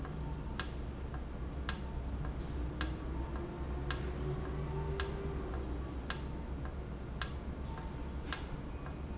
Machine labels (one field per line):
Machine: valve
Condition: normal